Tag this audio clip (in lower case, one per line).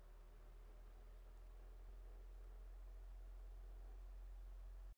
mechanisms